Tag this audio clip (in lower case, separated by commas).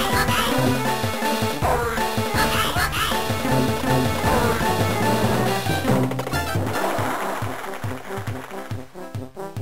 music